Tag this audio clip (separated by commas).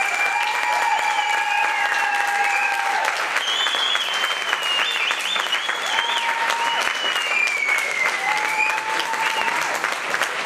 Applause